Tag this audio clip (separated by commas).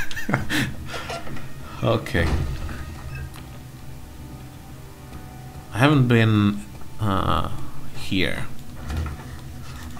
Speech, Music, inside a large room or hall